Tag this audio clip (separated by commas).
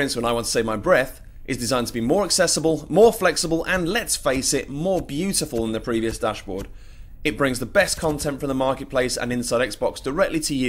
Speech